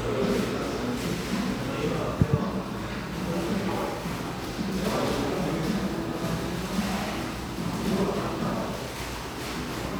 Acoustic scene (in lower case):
cafe